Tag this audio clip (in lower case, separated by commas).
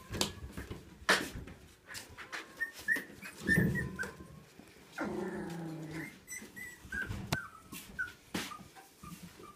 animal, dog, pets